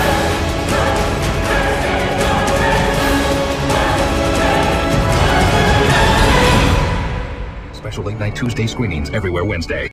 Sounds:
Music, Speech

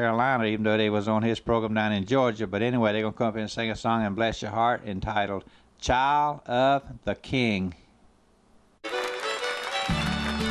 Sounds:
Speech, Music, Gospel music

